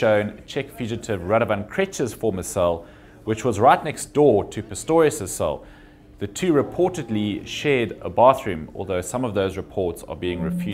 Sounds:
speech

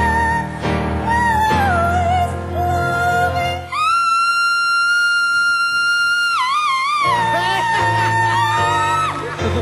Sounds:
singing, music, inside a public space

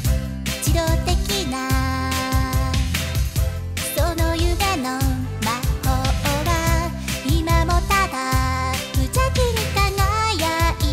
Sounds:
music

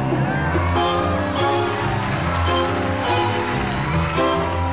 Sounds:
music

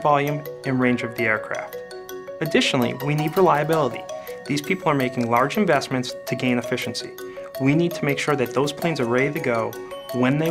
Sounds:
speech, music

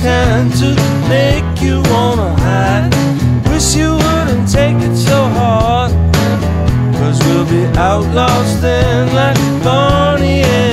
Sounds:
music

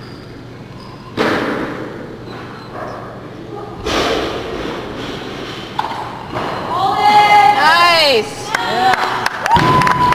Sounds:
speech, thump

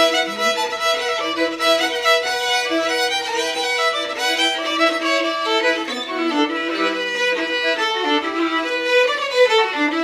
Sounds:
music, musical instrument, violin

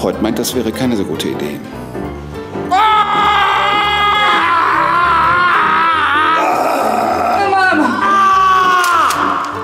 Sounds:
music, speech

